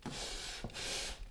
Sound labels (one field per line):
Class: furniture moving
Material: wooden